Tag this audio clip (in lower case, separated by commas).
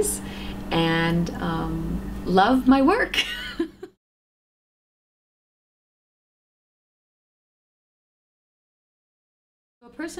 speech